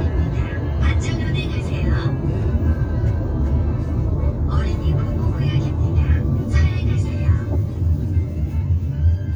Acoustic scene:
car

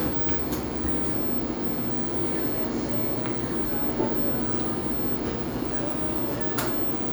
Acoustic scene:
cafe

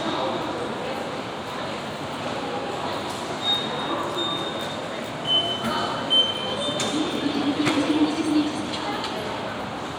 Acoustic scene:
subway station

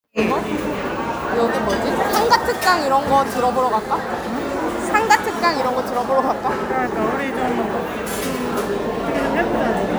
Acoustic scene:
crowded indoor space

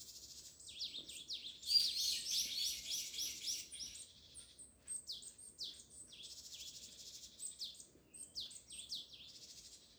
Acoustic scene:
park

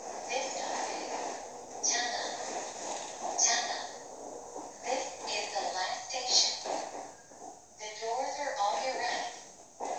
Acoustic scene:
subway train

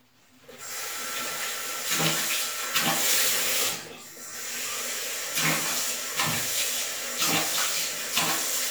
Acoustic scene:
restroom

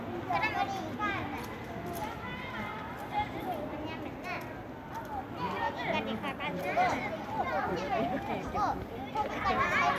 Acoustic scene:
residential area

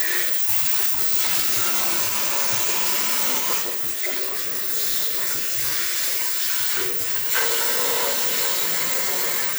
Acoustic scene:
restroom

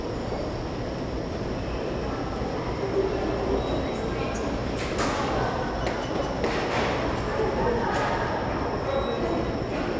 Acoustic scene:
subway station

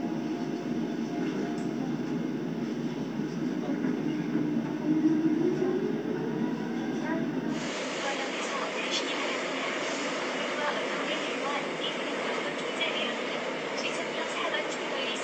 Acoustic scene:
subway train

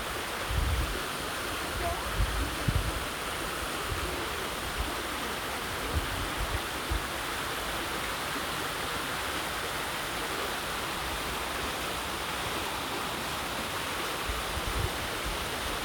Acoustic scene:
park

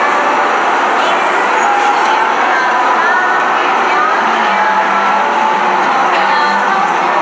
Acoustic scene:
cafe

